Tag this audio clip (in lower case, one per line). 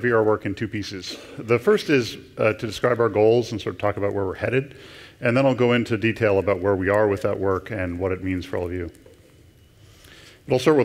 speech